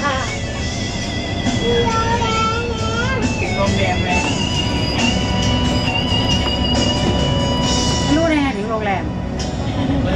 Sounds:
Speech, Music

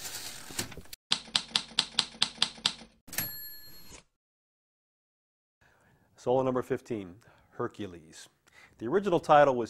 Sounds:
Speech

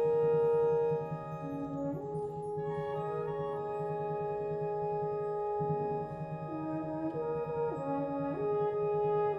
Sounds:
playing french horn, Orchestra, Brass instrument, French horn

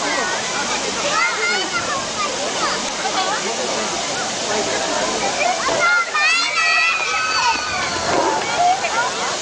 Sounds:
Water

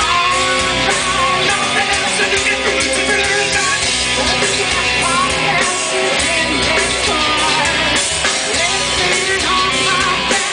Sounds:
Music, Heavy metal, Rock and roll

